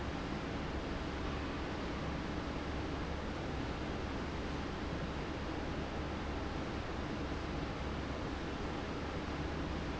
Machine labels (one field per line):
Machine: fan